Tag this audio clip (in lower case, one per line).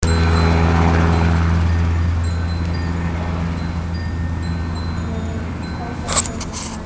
vehicle
aircraft